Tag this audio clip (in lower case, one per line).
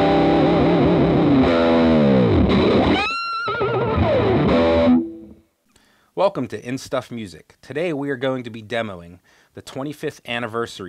speech
music
bass guitar